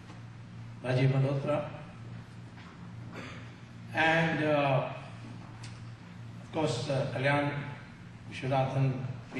A man delivering a speech